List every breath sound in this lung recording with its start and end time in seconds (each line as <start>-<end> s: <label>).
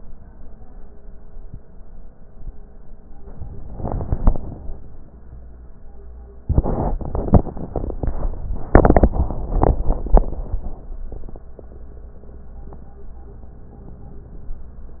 3.32-4.82 s: inhalation